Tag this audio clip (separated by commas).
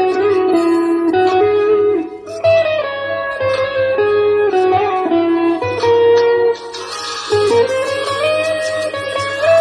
Guitar, Electric guitar, Strum, Plucked string instrument, Musical instrument, Music